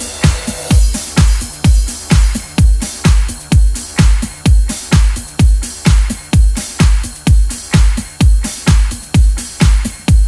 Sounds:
House music

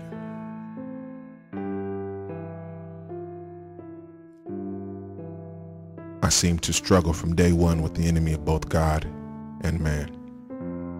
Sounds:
Speech, Music

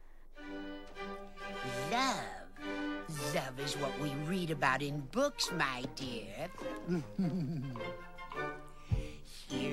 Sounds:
Music, Speech

